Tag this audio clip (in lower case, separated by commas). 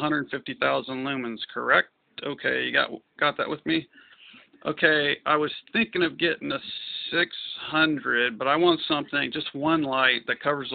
speech